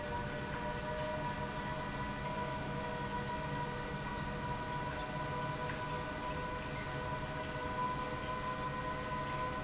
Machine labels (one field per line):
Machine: pump